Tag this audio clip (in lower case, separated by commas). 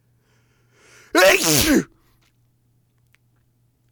respiratory sounds, sneeze